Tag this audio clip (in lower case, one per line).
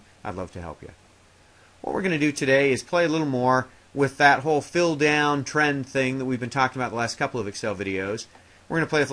speech